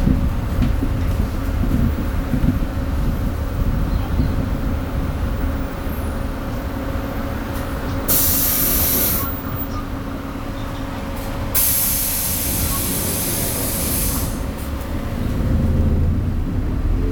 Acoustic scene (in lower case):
bus